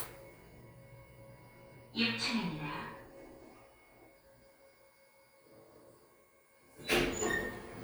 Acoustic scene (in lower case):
elevator